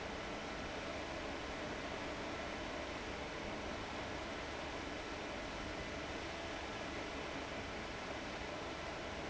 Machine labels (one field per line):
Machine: fan